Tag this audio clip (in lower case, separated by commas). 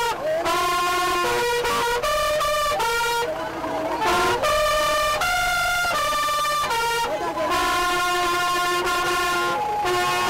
music, speech